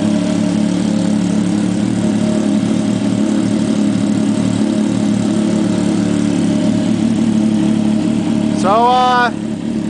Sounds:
Engine, Speech, Vehicle

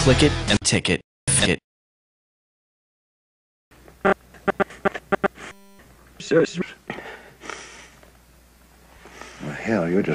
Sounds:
Speech, Music

